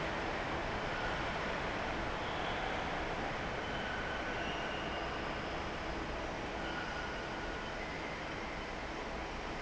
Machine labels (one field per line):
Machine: fan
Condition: normal